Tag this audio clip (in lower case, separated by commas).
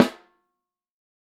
music, percussion, musical instrument, snare drum, drum